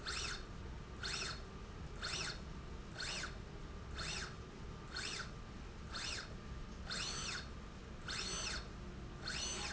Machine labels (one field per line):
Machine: slide rail